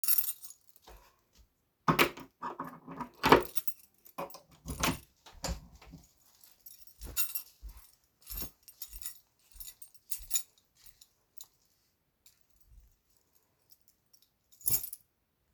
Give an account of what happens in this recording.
with keys opened the door and placed the keys apart